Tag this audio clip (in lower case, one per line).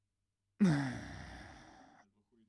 respiratory sounds
breathing
human voice
sigh